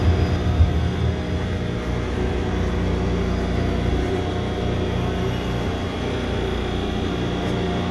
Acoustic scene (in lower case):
subway train